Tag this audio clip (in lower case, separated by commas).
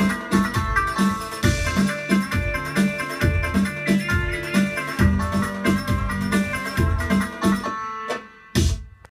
music, sound effect